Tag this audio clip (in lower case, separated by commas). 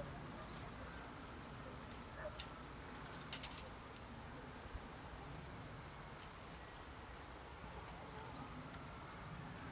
pheasant crowing